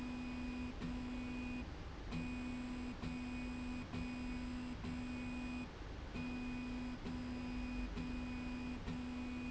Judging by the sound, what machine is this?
slide rail